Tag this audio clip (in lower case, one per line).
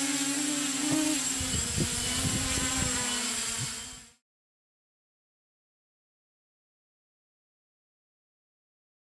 wasp